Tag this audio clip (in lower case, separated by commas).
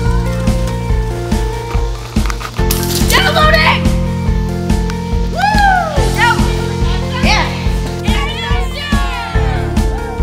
speech, music